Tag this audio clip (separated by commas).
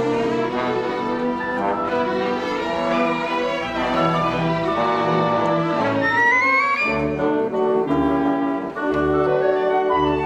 inside a large room or hall, Music